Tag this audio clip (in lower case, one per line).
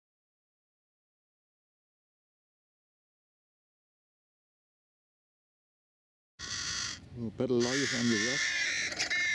speech
crow
bird